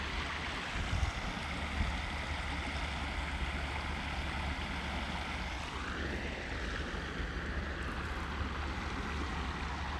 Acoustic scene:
park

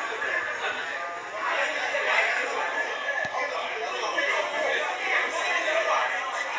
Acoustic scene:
crowded indoor space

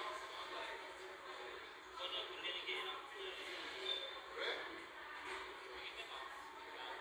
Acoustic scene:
crowded indoor space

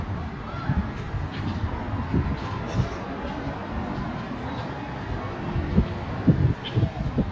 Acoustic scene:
residential area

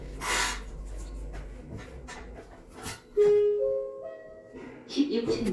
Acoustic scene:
elevator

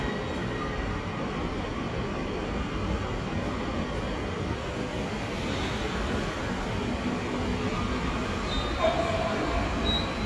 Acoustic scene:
subway station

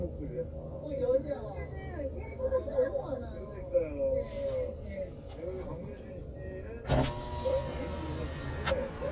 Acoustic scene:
car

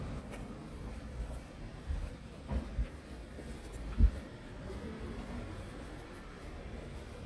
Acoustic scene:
residential area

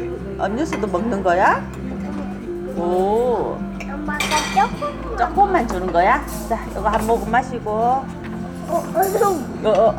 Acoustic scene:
restaurant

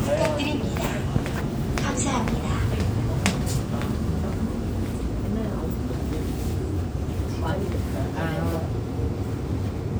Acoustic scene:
subway train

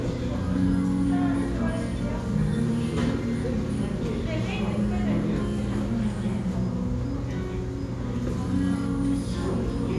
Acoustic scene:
restaurant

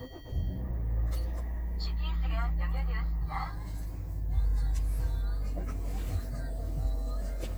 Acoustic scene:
car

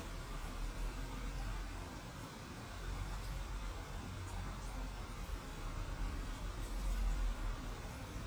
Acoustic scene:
residential area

